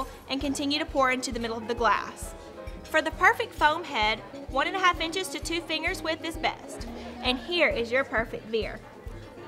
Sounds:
Speech, Music

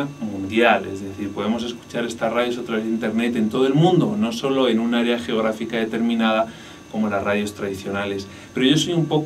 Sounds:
Speech

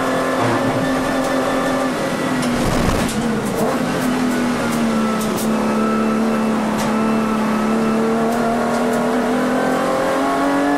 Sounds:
Race car, Vehicle, Car

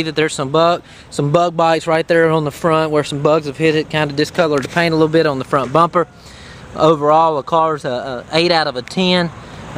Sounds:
Speech, Vehicle, Motor vehicle (road)

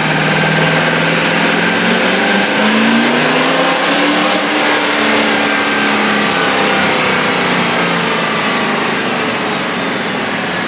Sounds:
Truck, outside, urban or man-made, Vehicle

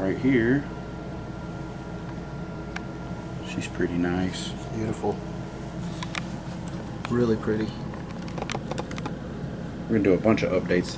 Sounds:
inside a small room, Speech

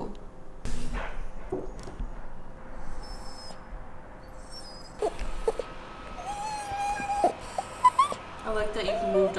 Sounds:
dog whimpering

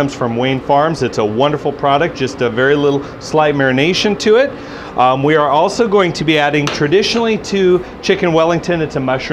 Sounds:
Speech

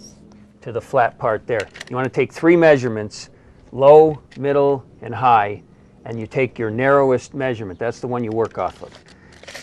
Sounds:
Speech

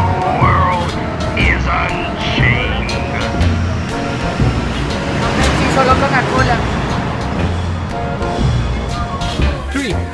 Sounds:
Speech, Music

